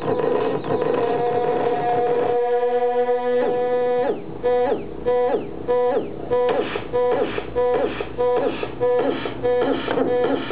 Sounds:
Music

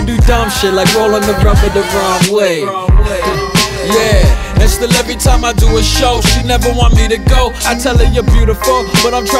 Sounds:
Dance music, Music, Jazz

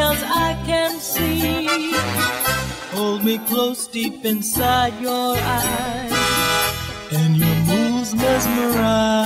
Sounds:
Music

